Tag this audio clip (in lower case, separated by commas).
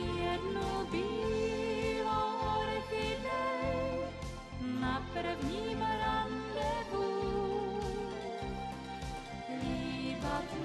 music